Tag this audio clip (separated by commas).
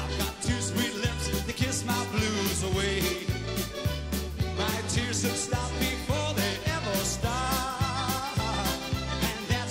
Folk music, Music